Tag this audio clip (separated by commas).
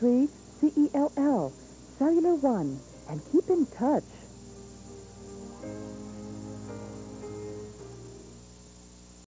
Speech, Music